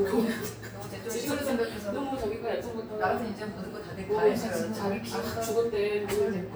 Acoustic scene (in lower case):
cafe